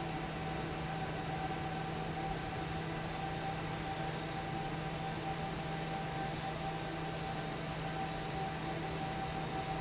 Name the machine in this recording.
fan